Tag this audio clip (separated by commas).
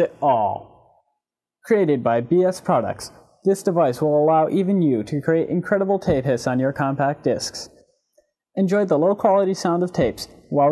Speech